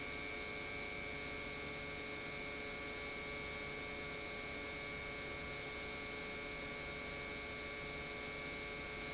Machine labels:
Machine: pump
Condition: normal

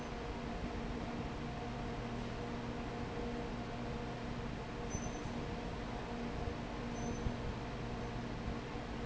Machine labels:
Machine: fan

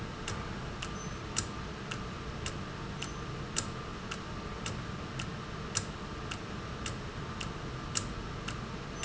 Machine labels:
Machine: valve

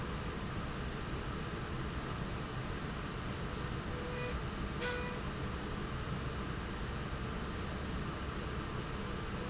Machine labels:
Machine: slide rail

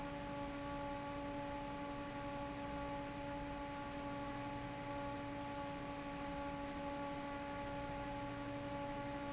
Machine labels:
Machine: fan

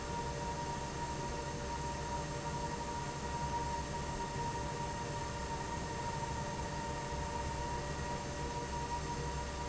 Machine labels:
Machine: fan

